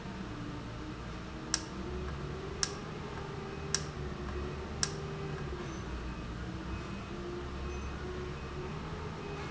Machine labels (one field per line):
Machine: valve